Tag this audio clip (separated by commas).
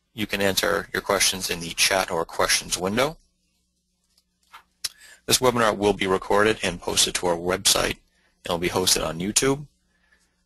Speech